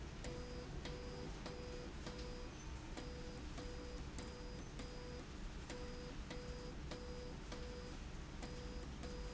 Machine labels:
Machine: slide rail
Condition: abnormal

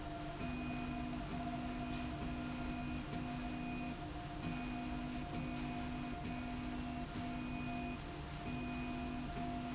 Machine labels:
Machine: slide rail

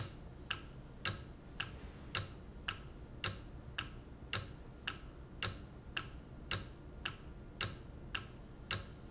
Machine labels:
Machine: valve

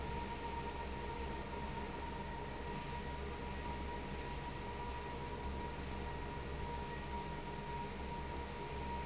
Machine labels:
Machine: fan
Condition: abnormal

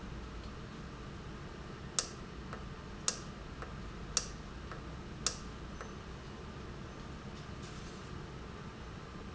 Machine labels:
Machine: valve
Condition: normal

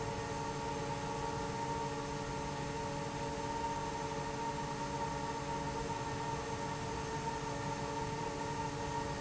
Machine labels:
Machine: fan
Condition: normal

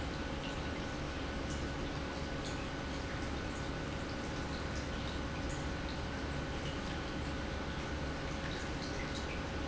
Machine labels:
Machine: pump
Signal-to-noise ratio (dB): -6 dB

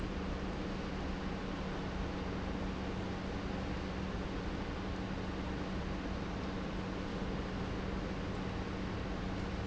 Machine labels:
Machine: pump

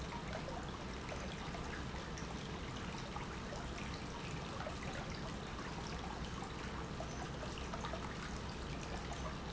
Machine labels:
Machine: pump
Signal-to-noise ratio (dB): 0 dB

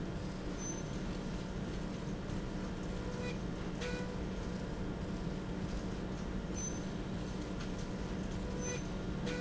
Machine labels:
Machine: slide rail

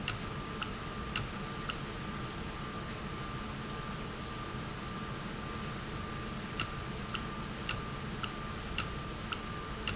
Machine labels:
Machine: valve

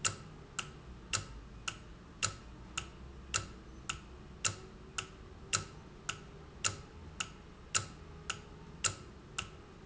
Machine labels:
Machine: valve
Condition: normal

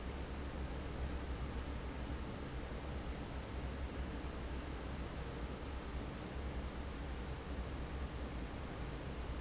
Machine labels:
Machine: fan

